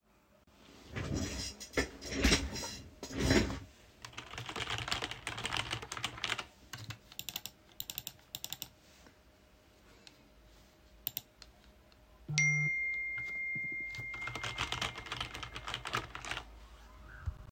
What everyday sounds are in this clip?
keyboard typing, phone ringing